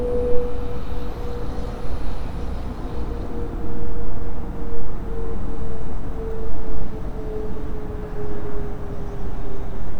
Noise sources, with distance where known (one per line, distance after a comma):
large-sounding engine, near